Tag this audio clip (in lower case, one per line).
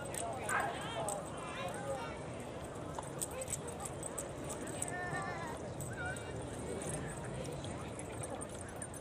speech